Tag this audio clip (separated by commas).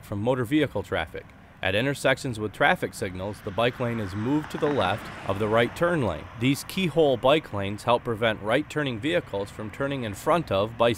Speech, Vehicle